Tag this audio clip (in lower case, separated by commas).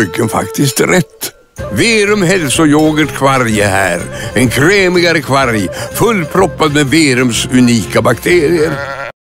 speech, music